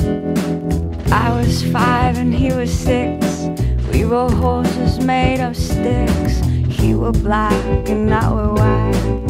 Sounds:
musical instrument, music

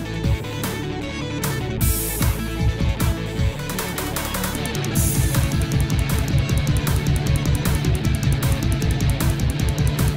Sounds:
music, theme music

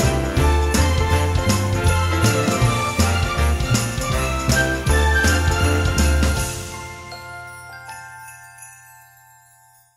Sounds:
jingle bell

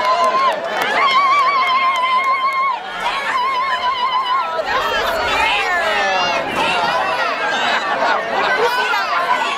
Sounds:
speech

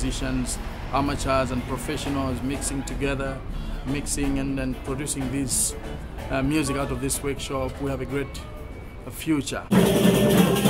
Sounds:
music, speech

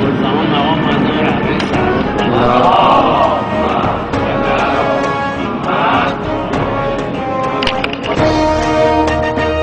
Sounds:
outside, urban or man-made, music, speech

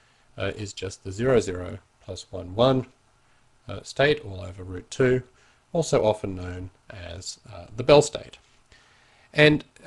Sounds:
speech

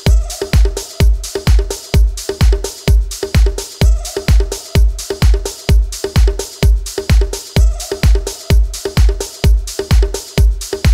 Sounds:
rhythm and blues, music, disco, funk

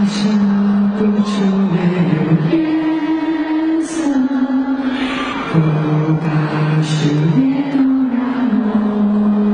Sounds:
music

